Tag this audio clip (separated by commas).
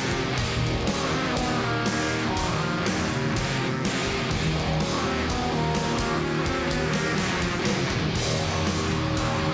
Music